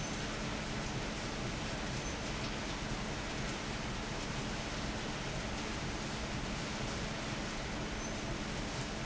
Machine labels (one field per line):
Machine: fan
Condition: abnormal